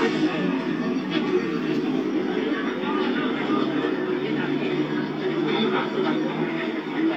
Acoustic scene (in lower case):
park